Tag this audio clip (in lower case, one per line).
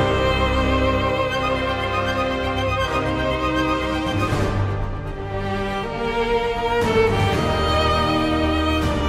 people booing